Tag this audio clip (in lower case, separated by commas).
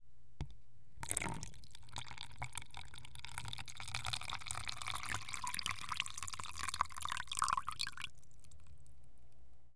water, liquid